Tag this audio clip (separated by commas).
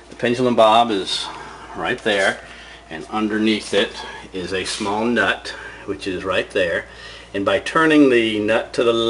Speech